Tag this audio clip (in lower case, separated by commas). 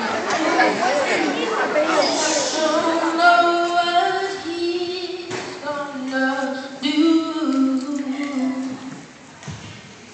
child singing, speech, male singing